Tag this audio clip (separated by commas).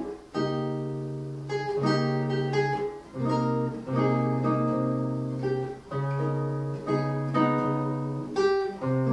Musical instrument, Plucked string instrument, Guitar, Bowed string instrument, Music, Acoustic guitar